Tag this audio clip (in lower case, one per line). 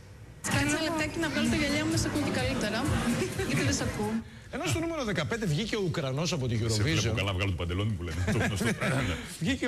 music
speech